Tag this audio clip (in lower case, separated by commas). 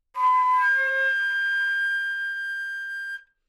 musical instrument, music, wind instrument